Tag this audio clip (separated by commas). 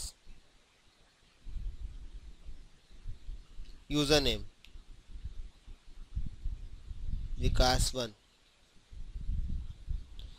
Speech, inside a small room